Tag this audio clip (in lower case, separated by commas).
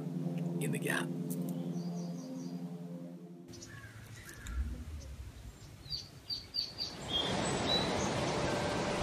tweet, bird call, bird